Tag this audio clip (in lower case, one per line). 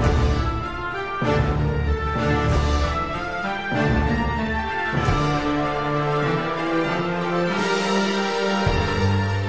music